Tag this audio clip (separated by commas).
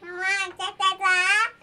Human voice, Speech